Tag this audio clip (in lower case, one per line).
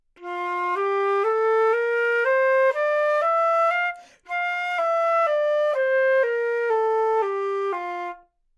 wind instrument
music
musical instrument